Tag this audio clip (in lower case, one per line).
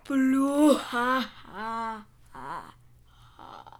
human voice
laughter